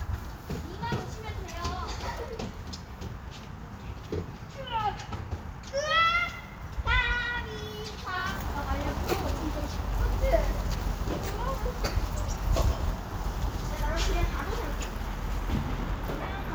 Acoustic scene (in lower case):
park